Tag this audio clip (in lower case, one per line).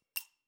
home sounds
coin (dropping)
glass